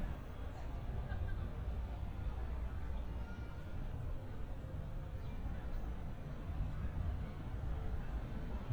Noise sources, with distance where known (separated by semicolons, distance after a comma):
person or small group talking, far